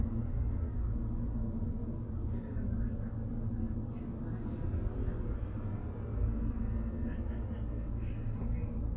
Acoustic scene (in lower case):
bus